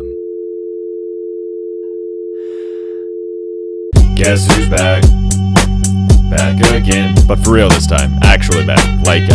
A dial tone sounds then music plays